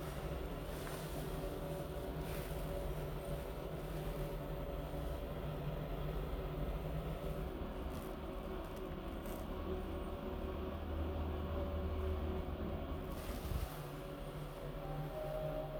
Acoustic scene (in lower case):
elevator